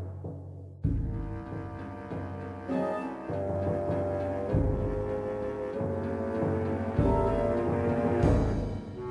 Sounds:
Music

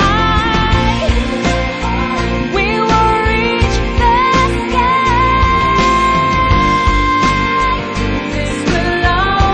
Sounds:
Music

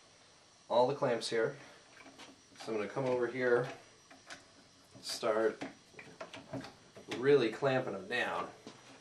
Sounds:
Speech

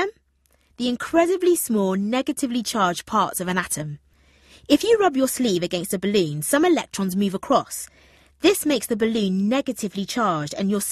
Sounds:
Speech

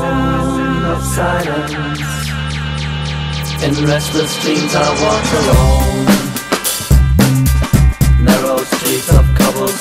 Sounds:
Music

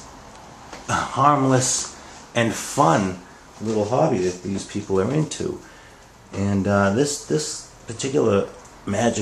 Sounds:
Speech

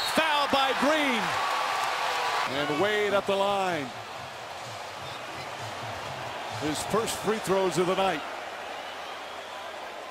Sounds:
basketball bounce

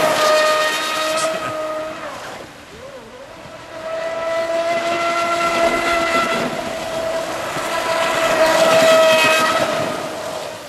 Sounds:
Speech, Boat, outside, rural or natural

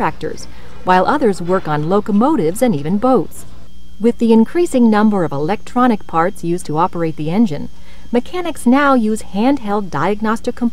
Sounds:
Speech

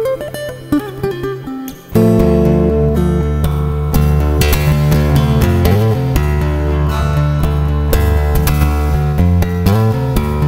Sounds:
tapping guitar

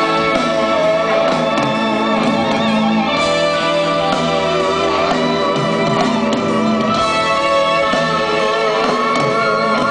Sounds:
Music

